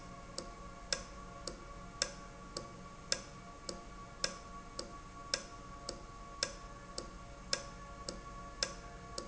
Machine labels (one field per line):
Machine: valve